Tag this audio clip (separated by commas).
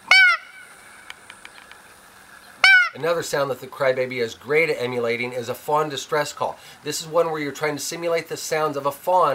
Speech